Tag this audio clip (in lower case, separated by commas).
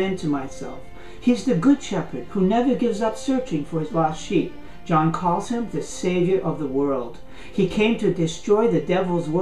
speech, music